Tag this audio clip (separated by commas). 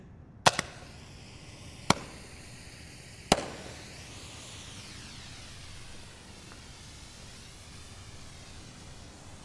Fire